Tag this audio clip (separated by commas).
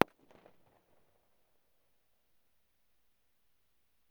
Fireworks, Explosion